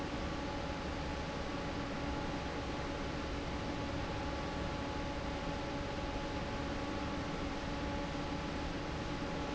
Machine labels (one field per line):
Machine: fan